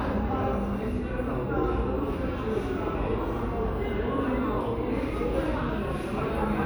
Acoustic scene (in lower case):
crowded indoor space